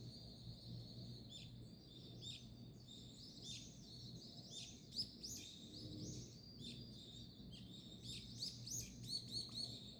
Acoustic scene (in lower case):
park